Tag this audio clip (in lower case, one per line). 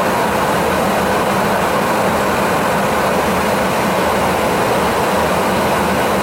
wind